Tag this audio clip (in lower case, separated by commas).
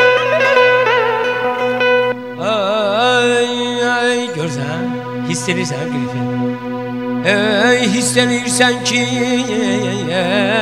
music